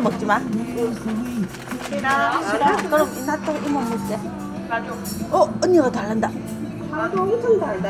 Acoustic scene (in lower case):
restaurant